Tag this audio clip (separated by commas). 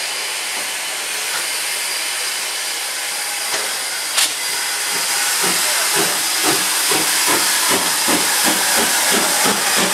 Hiss, Steam